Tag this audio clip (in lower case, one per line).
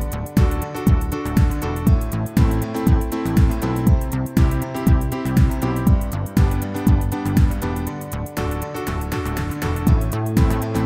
music